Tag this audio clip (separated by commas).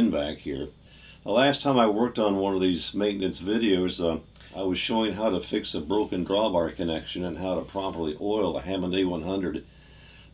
Speech